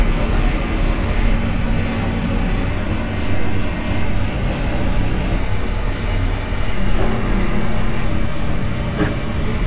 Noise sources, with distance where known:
jackhammer

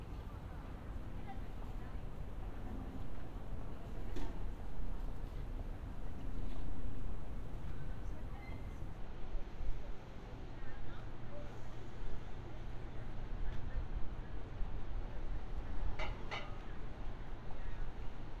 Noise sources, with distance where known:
non-machinery impact; person or small group talking, far

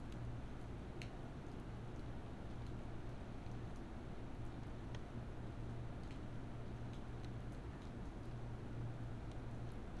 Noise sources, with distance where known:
background noise

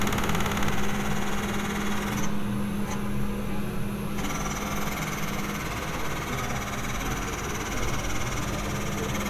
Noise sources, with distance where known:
hoe ram

